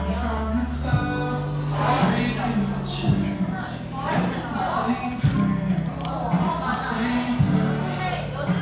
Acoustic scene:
cafe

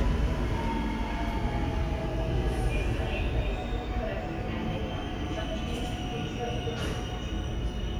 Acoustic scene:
subway station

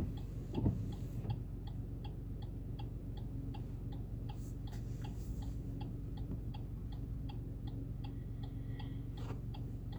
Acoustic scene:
car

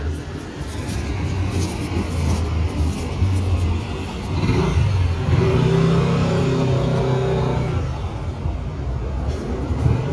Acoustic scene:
residential area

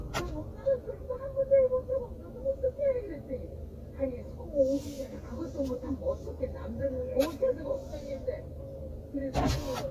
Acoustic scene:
car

